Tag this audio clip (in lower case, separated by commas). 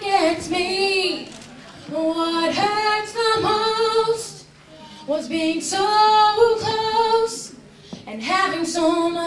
female singing, speech